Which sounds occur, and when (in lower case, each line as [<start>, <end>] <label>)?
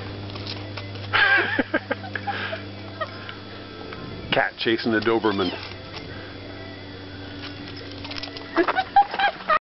[0.00, 9.54] mechanisms
[0.00, 9.54] music
[0.21, 1.11] dog
[1.13, 2.19] laughter
[1.77, 2.08] dog
[2.24, 2.61] dog
[2.25, 2.62] breathing
[2.97, 3.12] dog
[3.06, 3.39] breathing
[3.25, 3.33] tick
[3.86, 3.96] tick
[4.30, 5.59] male speech
[4.96, 5.13] dog
[5.21, 5.67] cat
[5.66, 6.05] dog
[5.80, 8.55] singing
[7.39, 8.81] dog
[8.94, 9.57] dog